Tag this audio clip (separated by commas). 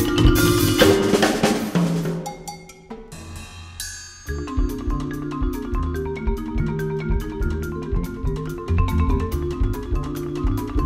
Music, xylophone, Drum kit, Musical instrument, Percussion